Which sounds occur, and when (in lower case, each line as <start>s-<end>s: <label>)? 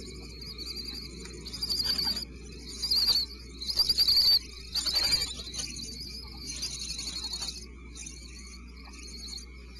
0.0s-9.7s: bird vocalization
0.0s-9.7s: howl (wind)